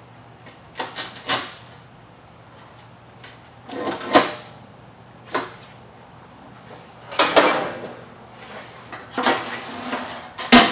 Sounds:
inside a large room or hall

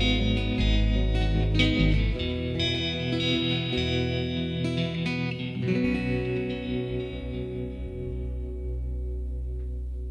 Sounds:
Music

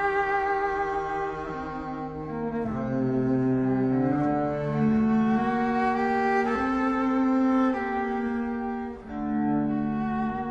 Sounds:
Double bass, playing cello, Cello, Bowed string instrument

